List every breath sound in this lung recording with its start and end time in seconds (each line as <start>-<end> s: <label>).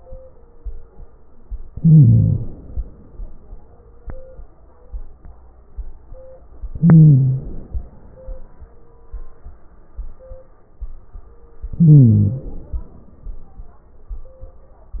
1.70-2.47 s: wheeze
1.72-2.82 s: inhalation
6.73-7.50 s: wheeze
6.75-7.81 s: inhalation
11.72-12.49 s: wheeze
11.72-12.75 s: inhalation